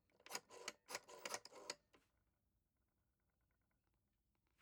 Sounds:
Alarm, Telephone

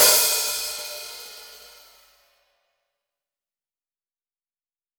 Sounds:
Musical instrument, Cymbal, Percussion, Music, Hi-hat

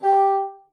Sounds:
woodwind instrument, Musical instrument, Music

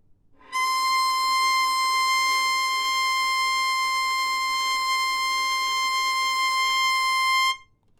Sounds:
Bowed string instrument, Musical instrument, Music

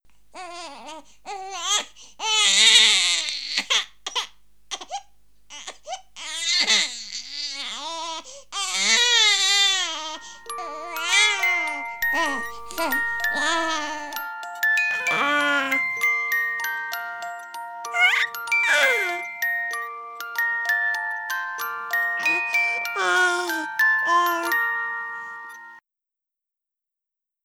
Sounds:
Crying, Human voice

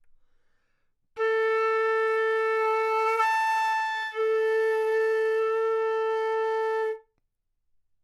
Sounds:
woodwind instrument, Musical instrument, Music

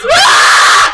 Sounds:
Human voice, Screaming

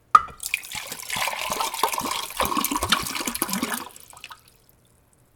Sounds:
Liquid

